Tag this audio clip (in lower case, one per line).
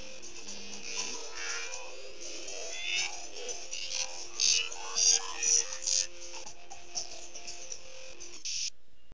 music